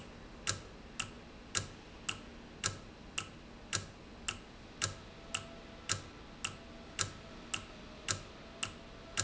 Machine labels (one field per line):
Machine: valve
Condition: normal